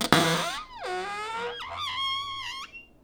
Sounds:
Cupboard open or close, Domestic sounds

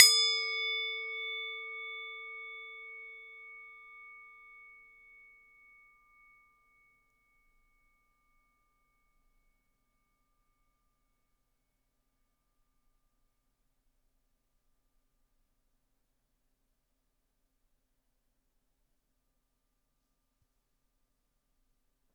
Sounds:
Music, Musical instrument

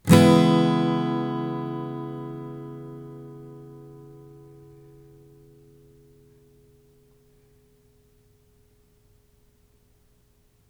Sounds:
Plucked string instrument, Musical instrument, Music, Strum, Guitar

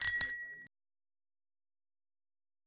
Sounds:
Bicycle bell, Bell, Vehicle, Bicycle, Alarm

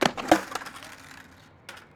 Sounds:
Skateboard, Vehicle

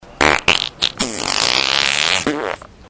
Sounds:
Fart

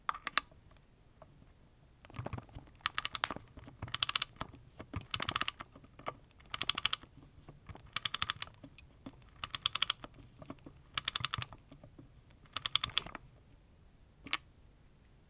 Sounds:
Mechanisms, Clock

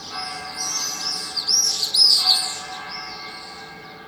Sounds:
Animal, Bird, Wild animals

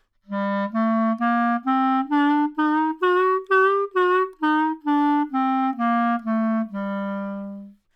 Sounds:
Wind instrument, Music, Musical instrument

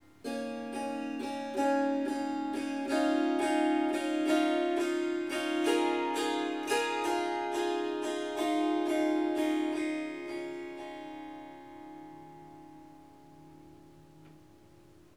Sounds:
Music, Musical instrument, Harp

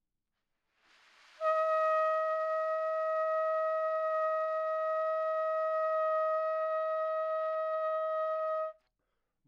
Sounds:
Musical instrument, Trumpet, Music, Brass instrument

